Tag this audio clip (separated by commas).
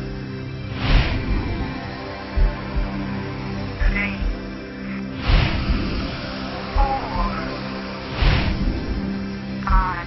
Speech, Music